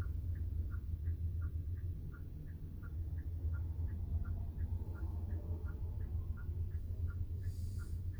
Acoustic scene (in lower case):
car